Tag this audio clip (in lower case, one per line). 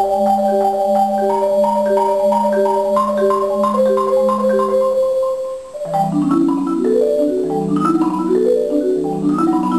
xylophone
playing marimba
music